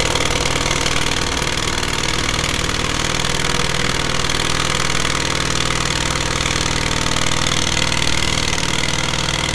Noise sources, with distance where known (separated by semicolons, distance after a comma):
jackhammer, near